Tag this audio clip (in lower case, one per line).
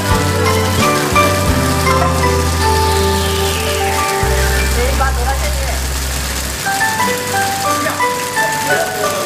speech
music